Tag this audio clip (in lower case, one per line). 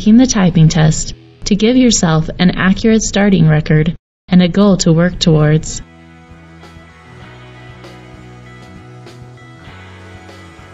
music
speech